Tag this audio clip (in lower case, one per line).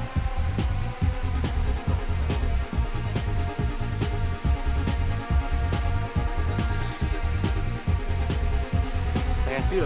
music
speech